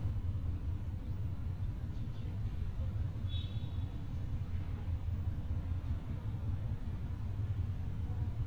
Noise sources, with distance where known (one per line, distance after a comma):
car horn